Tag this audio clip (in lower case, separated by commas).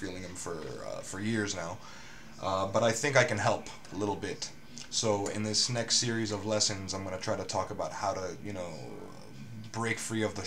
speech